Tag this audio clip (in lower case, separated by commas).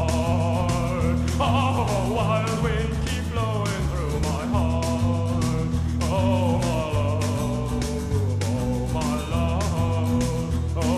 music